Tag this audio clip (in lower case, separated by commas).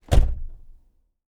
motor vehicle (road), car, domestic sounds, door, slam, vehicle